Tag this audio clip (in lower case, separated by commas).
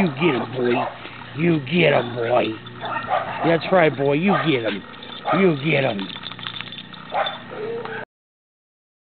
speech, yip, bow-wow